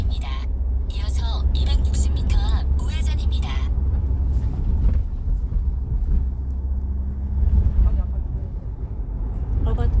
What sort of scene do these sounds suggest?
car